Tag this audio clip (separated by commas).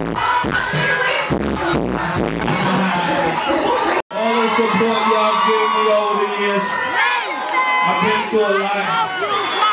Speech, inside a large room or hall, Music